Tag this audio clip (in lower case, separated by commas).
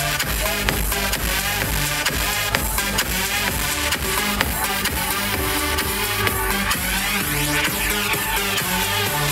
music, techno